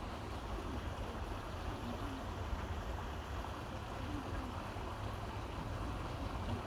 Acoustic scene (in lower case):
park